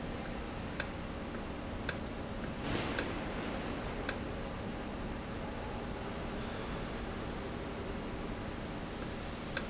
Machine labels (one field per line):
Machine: valve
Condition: normal